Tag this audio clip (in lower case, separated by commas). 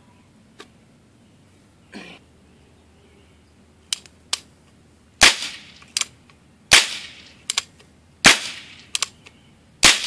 gunshot, cap gun